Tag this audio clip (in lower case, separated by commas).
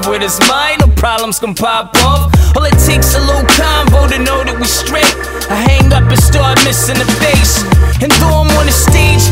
music, dance music, rhythm and blues